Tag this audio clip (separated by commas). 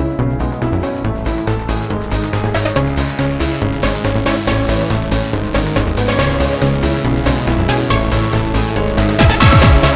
Techno, Electronic music, Music